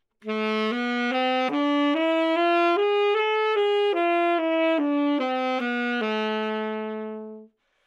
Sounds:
wind instrument, musical instrument, music

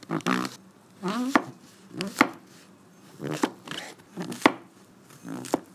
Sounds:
domestic sounds

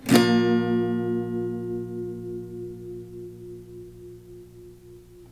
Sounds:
musical instrument, acoustic guitar, music, strum, guitar, plucked string instrument

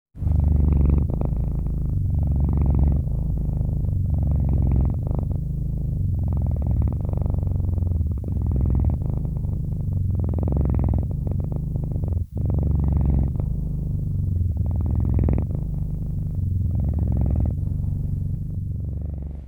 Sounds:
pets, purr, animal, cat

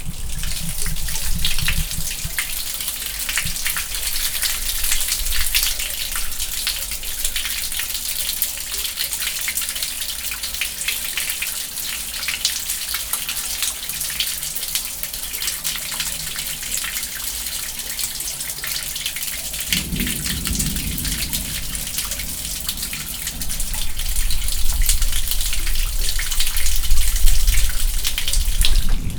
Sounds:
thunderstorm, thunder

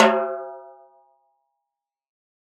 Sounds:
music, percussion, snare drum, drum, musical instrument

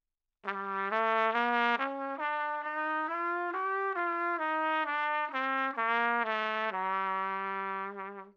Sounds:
musical instrument, music, brass instrument, trumpet

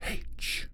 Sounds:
whispering, speech, man speaking, human voice

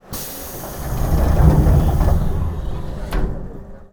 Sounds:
subway, rail transport, vehicle

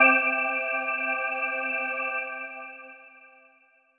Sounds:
musical instrument, music, organ, keyboard (musical)

